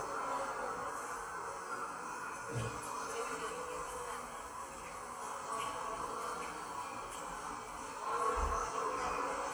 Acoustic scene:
subway station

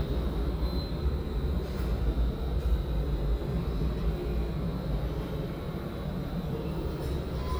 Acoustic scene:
subway station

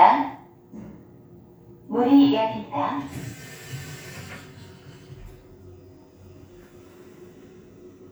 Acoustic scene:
elevator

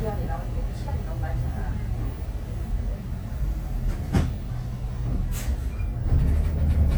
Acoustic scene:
bus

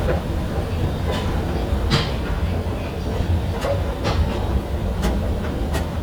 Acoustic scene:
subway station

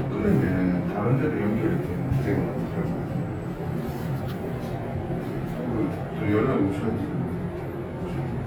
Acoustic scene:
elevator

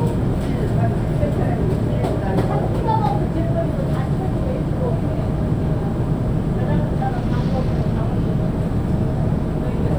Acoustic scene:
subway train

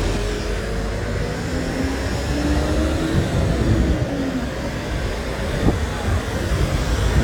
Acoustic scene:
residential area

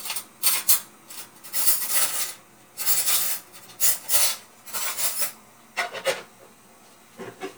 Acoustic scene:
kitchen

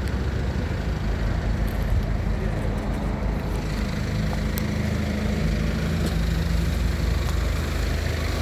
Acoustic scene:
street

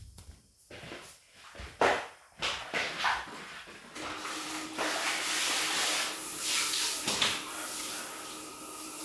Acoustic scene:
restroom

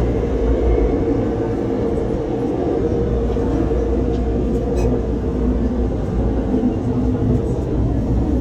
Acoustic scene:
subway train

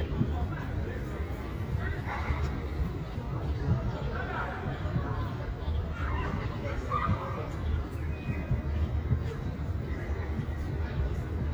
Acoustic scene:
park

